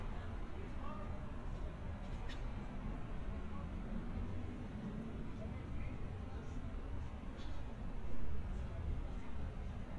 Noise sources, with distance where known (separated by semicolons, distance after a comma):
unidentified human voice, far